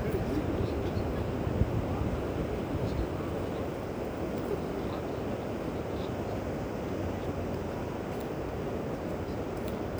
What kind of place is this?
park